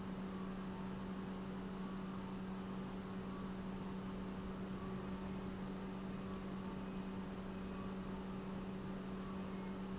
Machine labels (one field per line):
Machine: pump